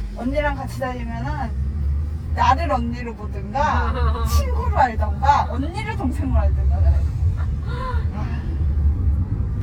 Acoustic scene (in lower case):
car